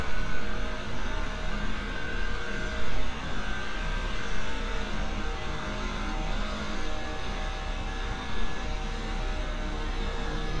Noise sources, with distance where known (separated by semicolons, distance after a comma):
unidentified impact machinery, near